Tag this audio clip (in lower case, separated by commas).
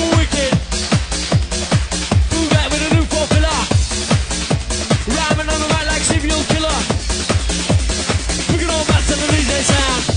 techno, trance music